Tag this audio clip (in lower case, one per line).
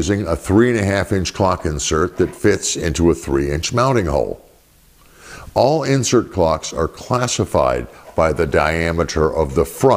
speech